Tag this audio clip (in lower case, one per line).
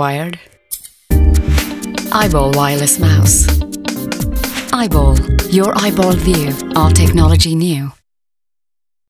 speech
music